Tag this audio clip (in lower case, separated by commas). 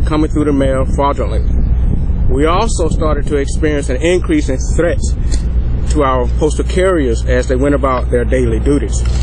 speech